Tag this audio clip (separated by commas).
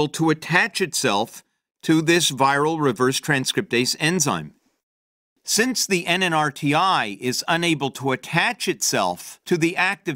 Speech